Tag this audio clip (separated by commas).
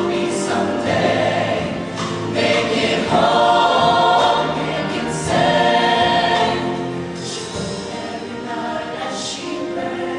Choir, Singing, Music